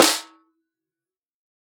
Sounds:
Snare drum, Drum, Musical instrument, Music, Percussion

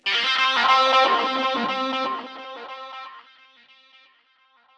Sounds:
Music, Guitar, Musical instrument, Plucked string instrument

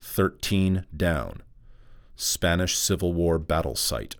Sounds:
Speech, Human voice, Male speech

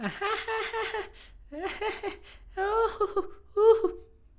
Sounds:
Laughter, Human voice

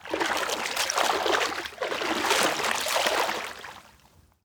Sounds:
Liquid, Splash

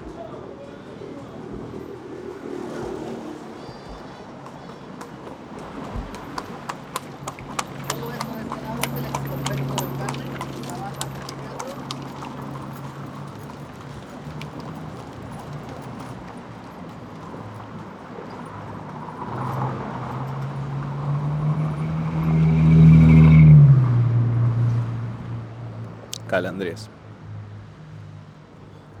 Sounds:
livestock, Animal

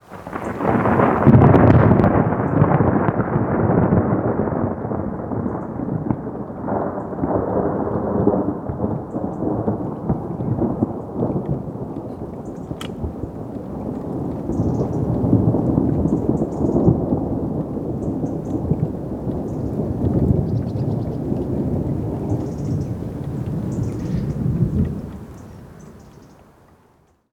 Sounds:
Thunderstorm, Thunder

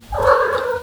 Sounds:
Cat, Animal, Domestic animals

